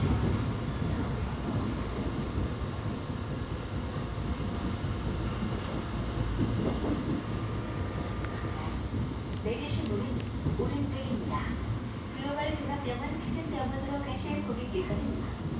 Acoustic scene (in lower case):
subway train